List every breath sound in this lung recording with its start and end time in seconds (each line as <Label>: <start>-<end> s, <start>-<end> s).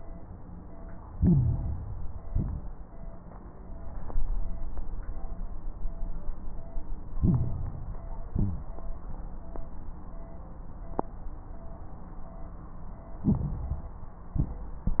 Inhalation: 1.06-2.24 s, 7.14-8.11 s, 13.21-14.02 s
Exhalation: 2.26-3.02 s, 8.30-8.93 s, 14.33-15.00 s
Crackles: 1.06-2.24 s, 2.26-3.02 s, 8.30-8.93 s, 13.21-14.02 s, 14.33-15.00 s